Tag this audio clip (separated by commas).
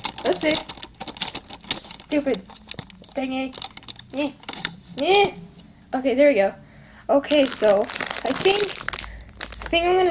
Speech